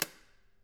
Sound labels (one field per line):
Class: switch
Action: being turned on